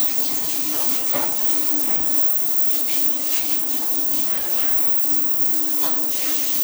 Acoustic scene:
restroom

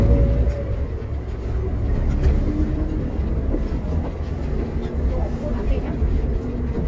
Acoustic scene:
bus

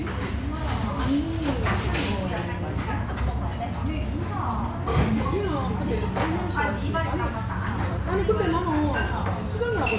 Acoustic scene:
restaurant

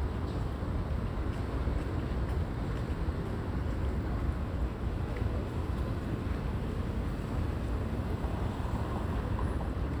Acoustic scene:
residential area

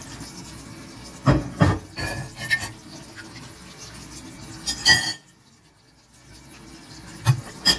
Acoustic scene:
kitchen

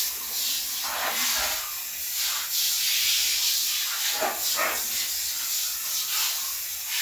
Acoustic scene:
restroom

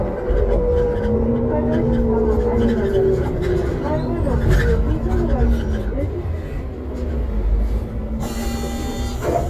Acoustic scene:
bus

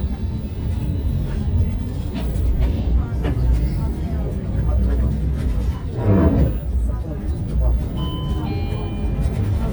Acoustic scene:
bus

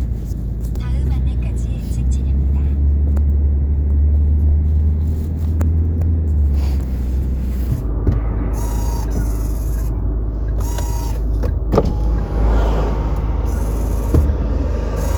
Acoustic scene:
car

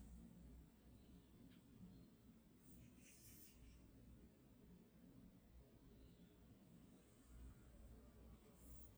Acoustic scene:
park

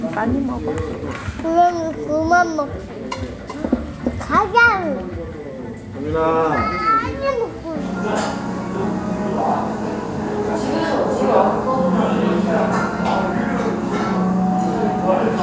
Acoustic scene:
restaurant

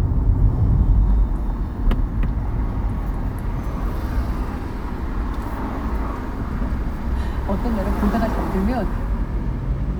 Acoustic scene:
car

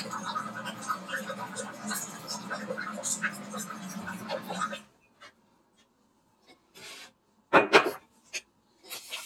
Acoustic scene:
kitchen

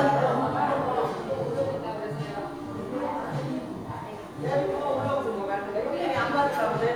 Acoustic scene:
crowded indoor space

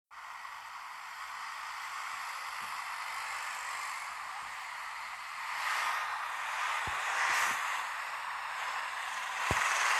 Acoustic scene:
street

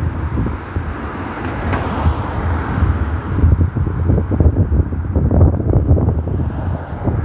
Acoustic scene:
street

